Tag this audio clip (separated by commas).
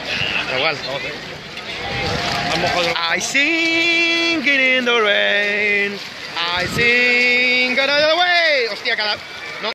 Speech